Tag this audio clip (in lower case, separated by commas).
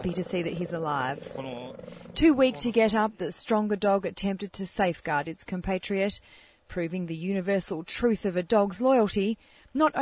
speech